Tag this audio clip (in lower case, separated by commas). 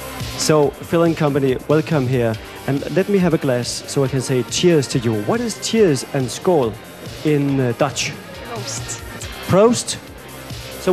music, speech